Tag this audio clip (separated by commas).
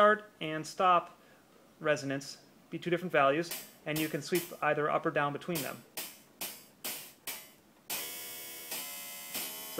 Speech, Music, Keyboard (musical), Musical instrument, Synthesizer